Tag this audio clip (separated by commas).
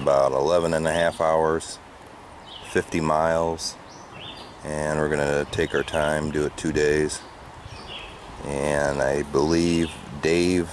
Speech